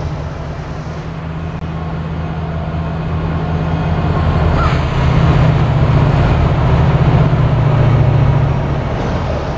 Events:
0.0s-9.5s: train
1.9s-2.0s: tick
4.5s-4.8s: train wheels squealing

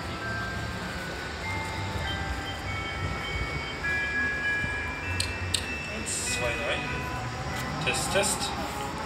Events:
0.0s-7.3s: music
0.0s-9.0s: mechanisms
5.1s-5.3s: generic impact sounds
5.5s-5.7s: generic impact sounds
5.9s-7.1s: male speech
7.5s-7.6s: generic impact sounds
7.8s-8.6s: male speech

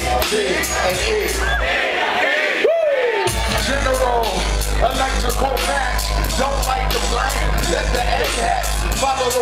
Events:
0.0s-0.2s: male singing
0.0s-9.4s: crowd
0.7s-1.3s: male singing
1.6s-2.6s: male singing
2.6s-3.3s: whoop
3.2s-9.4s: music
3.6s-4.4s: male singing
4.8s-6.1s: male singing
6.4s-8.6s: male singing

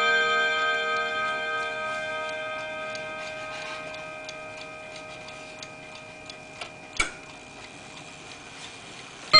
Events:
0.0s-9.3s: alarm clock
0.2s-0.6s: tick-tock
0.9s-1.2s: tick-tock
1.5s-2.0s: tick-tock
2.2s-2.6s: tick-tock
2.8s-3.2s: tick-tock
3.6s-3.9s: tick-tock
4.2s-4.6s: tick-tock
4.9s-5.3s: tick-tock
5.6s-6.0s: tick-tock
6.2s-6.7s: tick-tock
7.0s-7.1s: tick
7.5s-8.0s: tick-tock
8.2s-8.7s: tick-tock
8.9s-9.1s: tick-tock

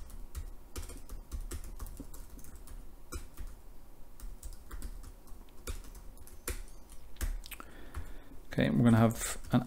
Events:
0.0s-0.2s: computer keyboard
0.0s-9.6s: mechanisms
0.3s-1.2s: computer keyboard
1.8s-2.2s: computer keyboard
2.3s-2.7s: computer keyboard
2.9s-3.6s: computer keyboard
3.8s-4.3s: computer keyboard
4.4s-5.1s: computer keyboard
5.2s-5.9s: computer keyboard
6.2s-6.6s: computer keyboard
7.2s-7.6s: computer keyboard
7.8s-8.4s: computer keyboard
8.6s-8.6s: tick
8.7s-9.1s: computer keyboard
9.3s-9.6s: computer keyboard

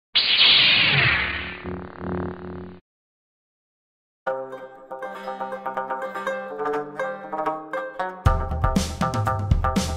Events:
0.1s-2.8s: sound effect
4.2s-9.9s: music

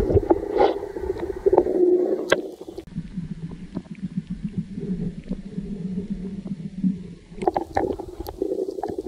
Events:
0.0s-9.0s: gurgling
0.5s-0.8s: animal
2.2s-2.4s: generic impact sounds

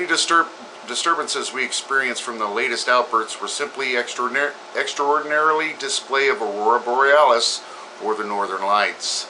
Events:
0.0s-0.5s: man speaking
0.0s-9.2s: mechanisms
0.6s-0.6s: generic impact sounds
0.7s-0.8s: generic impact sounds
0.8s-4.5s: man speaking
4.7s-7.6s: man speaking
7.6s-7.9s: breathing
8.0s-9.2s: man speaking

